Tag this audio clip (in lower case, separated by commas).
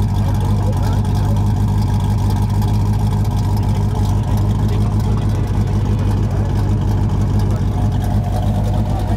clatter, speech